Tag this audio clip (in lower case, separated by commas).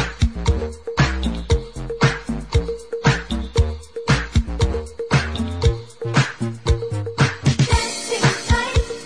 disco, music